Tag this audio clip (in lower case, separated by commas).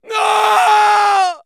human voice, screaming